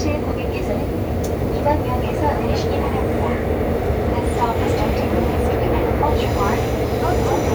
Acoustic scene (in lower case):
subway train